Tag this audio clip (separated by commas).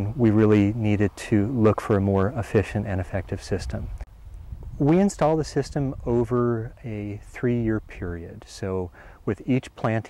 Speech